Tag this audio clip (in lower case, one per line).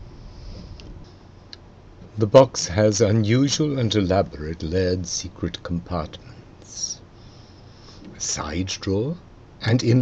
speech